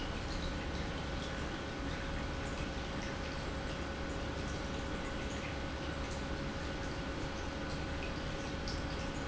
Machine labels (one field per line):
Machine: pump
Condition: normal